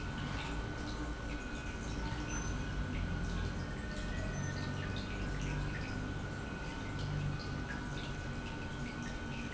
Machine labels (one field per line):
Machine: pump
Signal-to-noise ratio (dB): -6 dB